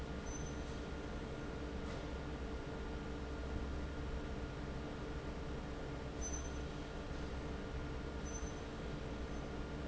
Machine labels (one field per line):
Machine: fan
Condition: normal